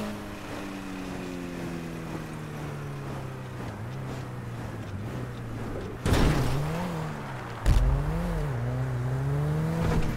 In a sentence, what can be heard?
A vehicle hits something as it passes by